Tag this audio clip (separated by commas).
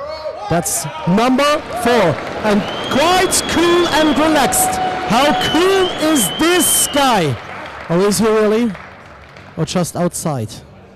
Speech